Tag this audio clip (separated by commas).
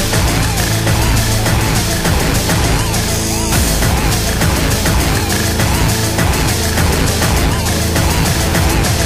Music